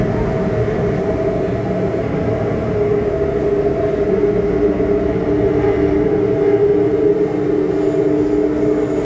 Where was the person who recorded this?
on a subway train